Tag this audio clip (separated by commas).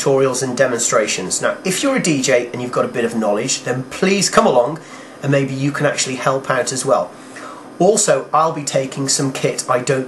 Speech